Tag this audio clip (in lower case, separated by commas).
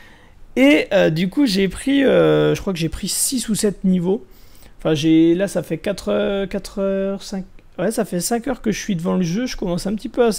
speech